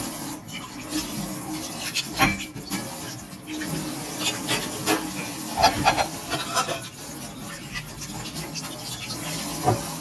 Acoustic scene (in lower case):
kitchen